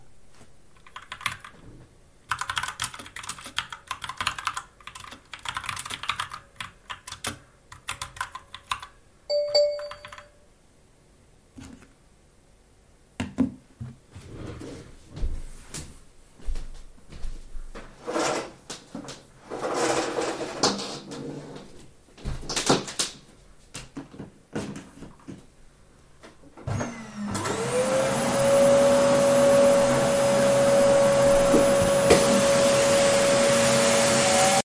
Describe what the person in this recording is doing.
I was typing on the keyboard when I received a notification, after that I stood up from my chair went to the vacuum cleaner pulled out its cable and started vacuuming